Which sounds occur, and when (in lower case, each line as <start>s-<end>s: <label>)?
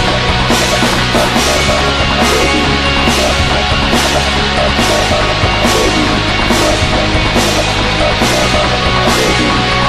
0.0s-9.8s: music